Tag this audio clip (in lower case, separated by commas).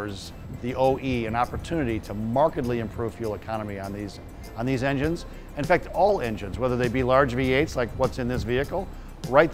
music, speech